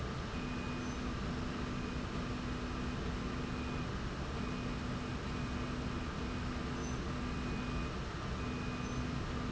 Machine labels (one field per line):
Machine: slide rail